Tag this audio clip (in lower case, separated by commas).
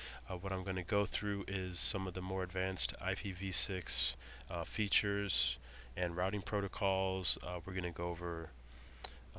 speech